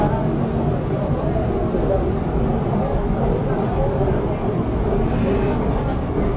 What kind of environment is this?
subway train